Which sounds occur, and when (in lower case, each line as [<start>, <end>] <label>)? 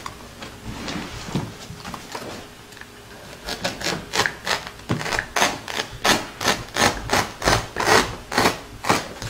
[0.00, 2.46] generic impact sounds
[0.00, 9.25] background noise
[0.38, 0.41] tick
[2.75, 2.82] tick
[3.09, 3.38] generic impact sounds
[3.39, 3.95] knife
[4.10, 4.28] knife
[4.44, 4.67] knife
[4.60, 4.68] tick
[4.82, 5.21] knife
[5.36, 5.88] knife
[6.03, 6.25] knife
[6.37, 6.58] knife
[6.71, 7.24] knife
[7.41, 7.62] knife
[7.75, 8.12] knife
[8.27, 8.55] knife
[8.80, 9.06] knife